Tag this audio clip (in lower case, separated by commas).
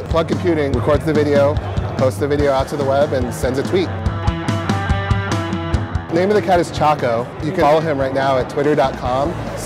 music, speech